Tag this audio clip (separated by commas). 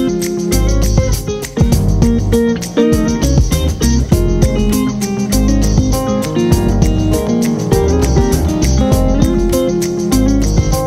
Music